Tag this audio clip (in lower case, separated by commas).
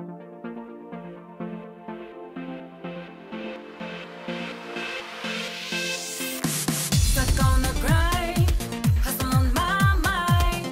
blues, music, rhythm and blues